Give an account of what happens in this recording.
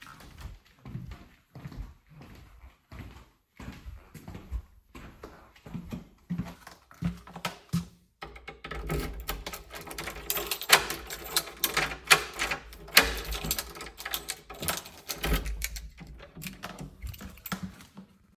I walked to the door in my room and opened it with my keys.